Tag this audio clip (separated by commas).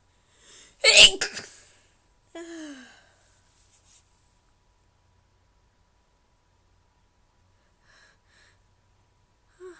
Sneeze